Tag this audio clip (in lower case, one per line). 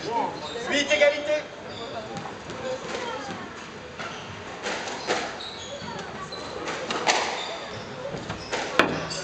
playing squash